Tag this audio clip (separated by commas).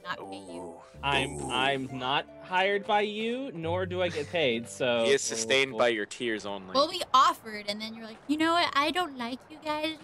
Speech